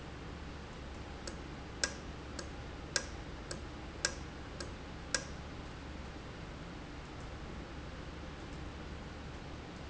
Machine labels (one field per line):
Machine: valve